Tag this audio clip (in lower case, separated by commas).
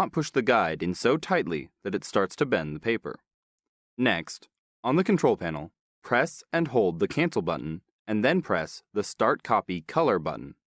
speech